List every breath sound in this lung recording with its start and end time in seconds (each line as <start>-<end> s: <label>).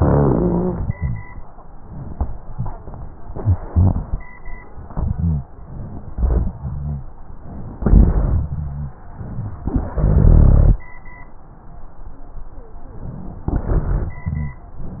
0.02-0.91 s: exhalation
0.02-0.91 s: rhonchi
3.68-4.21 s: inhalation
3.68-4.21 s: rhonchi
4.88-5.50 s: rhonchi
5.07-5.50 s: exhalation
6.13-6.57 s: inhalation
6.57-7.10 s: rhonchi
6.60-7.04 s: exhalation
7.82-8.48 s: exhalation
7.82-8.48 s: rhonchi
8.52-8.96 s: rhonchi
9.94-10.83 s: exhalation
9.94-10.83 s: rhonchi
13.57-14.23 s: exhalation
13.57-14.23 s: rhonchi
14.23-14.67 s: rhonchi